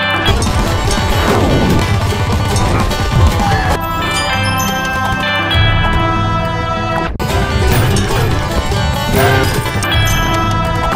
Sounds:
Music

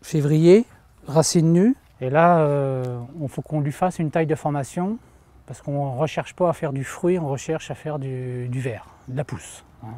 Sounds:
Speech

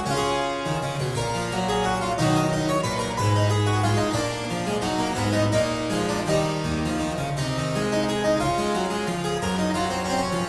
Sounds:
playing harpsichord

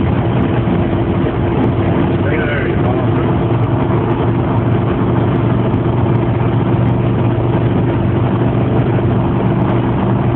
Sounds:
Speech

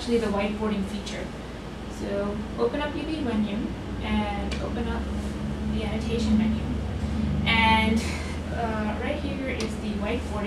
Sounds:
Speech

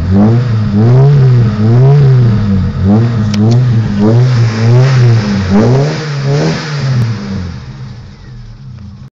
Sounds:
Vehicle, Car, Motor vehicle (road)

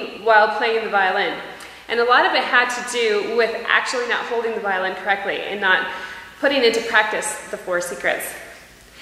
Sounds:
Speech

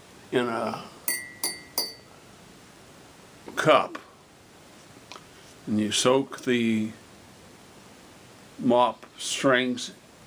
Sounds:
Speech

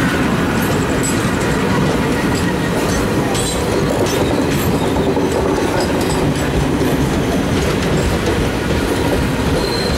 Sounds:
Vehicle, train wagon, Train, Rail transport

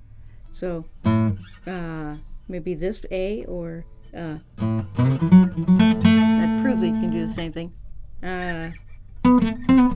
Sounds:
Strum, Speech, Musical instrument, Guitar, Acoustic guitar, Music, Plucked string instrument

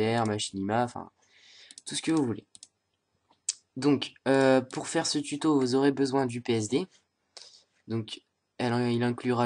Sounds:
Speech

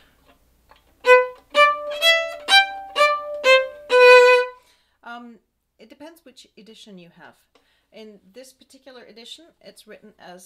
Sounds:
Music, Musical instrument, Speech, fiddle

